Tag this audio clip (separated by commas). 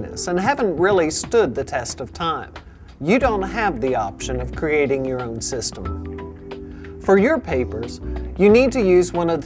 Music, Speech